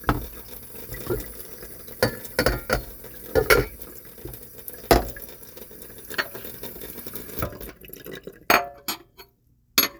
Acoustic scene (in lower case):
kitchen